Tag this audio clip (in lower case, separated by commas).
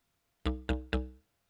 musical instrument, music